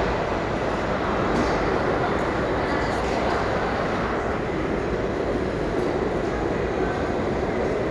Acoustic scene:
crowded indoor space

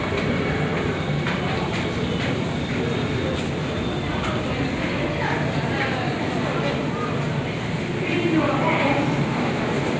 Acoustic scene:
subway station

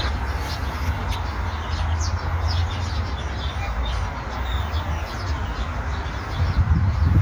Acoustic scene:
park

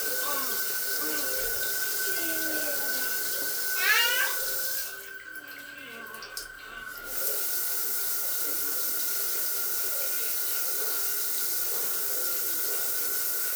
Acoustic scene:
restroom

